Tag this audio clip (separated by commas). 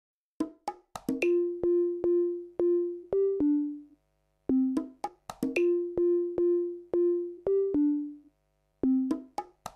outside, rural or natural, Music